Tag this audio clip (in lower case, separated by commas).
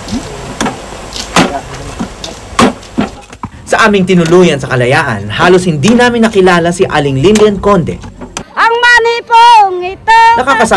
speech, outside, rural or natural